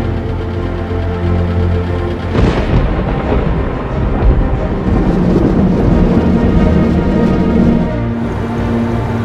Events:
0.0s-2.3s: medium engine (mid frequency)
0.0s-9.2s: music
0.0s-9.2s: sound effect
2.3s-3.4s: thunderstorm
4.8s-8.1s: train
8.4s-9.2s: bus

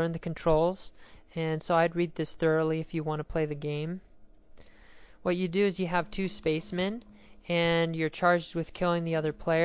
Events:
0.0s-0.9s: woman speaking
0.0s-9.6s: background noise
0.9s-1.2s: breathing
1.3s-4.0s: woman speaking
4.6s-4.7s: tick
4.6s-5.2s: breathing
5.2s-7.0s: woman speaking
7.0s-7.1s: tick
7.2s-7.4s: breathing
7.4s-9.6s: woman speaking

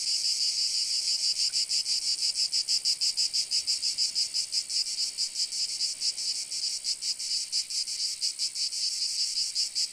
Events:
0.0s-9.9s: cricket

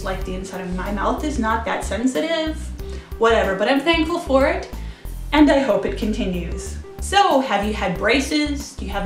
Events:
0.0s-2.5s: woman speaking
0.0s-9.0s: music
3.1s-4.7s: woman speaking
5.3s-6.8s: woman speaking
7.0s-9.0s: woman speaking

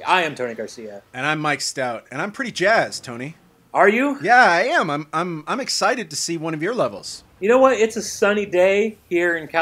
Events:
0.0s-1.0s: man speaking
0.0s-9.6s: conversation
0.0s-9.6s: video game sound
1.1s-3.4s: man speaking
3.7s-7.2s: man speaking
7.4s-8.9s: man speaking
7.5s-9.6s: sound effect
9.1s-9.6s: man speaking

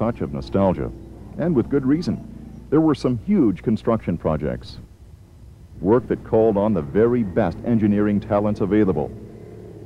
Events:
0.0s-0.9s: male speech
0.0s-9.8s: mechanisms
1.3s-2.1s: male speech
2.7s-4.8s: male speech
5.8s-9.1s: male speech

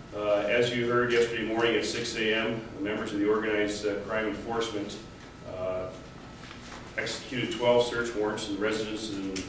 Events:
0.0s-9.4s: mechanisms
0.1s-4.9s: man speaking
1.1s-1.3s: generic impact sounds
1.5s-1.9s: generic impact sounds
5.2s-5.3s: generic impact sounds
5.4s-6.1s: man speaking
5.8s-7.7s: surface contact
7.0s-9.4s: man speaking
8.9s-9.4s: generic impact sounds

